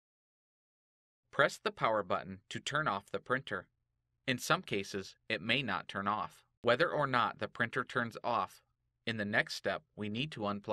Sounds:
Speech

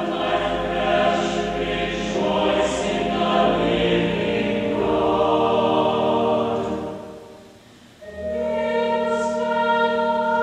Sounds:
Mantra, Music

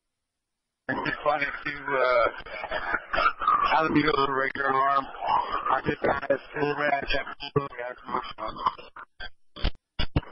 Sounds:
Speech

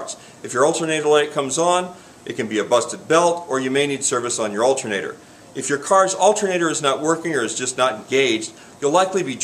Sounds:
Speech

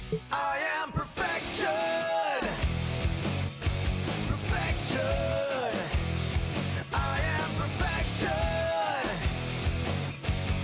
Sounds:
Music

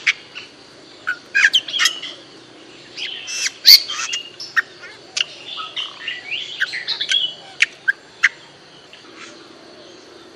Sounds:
mynah bird singing

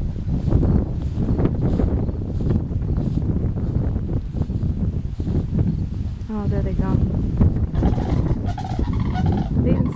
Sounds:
outside, rural or natural, Speech, Goose

